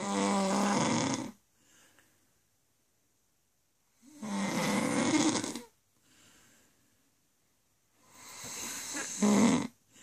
Loud continuous snoring